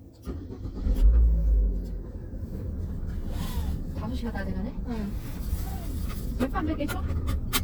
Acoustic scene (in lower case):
car